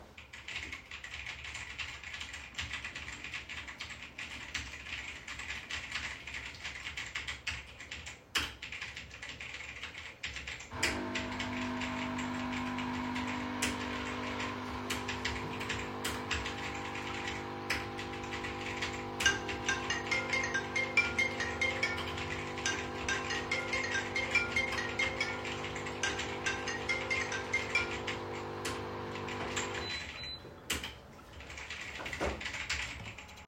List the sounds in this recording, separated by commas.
keyboard typing, coffee machine, phone ringing